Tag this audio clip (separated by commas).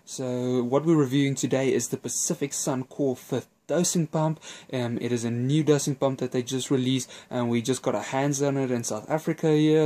Speech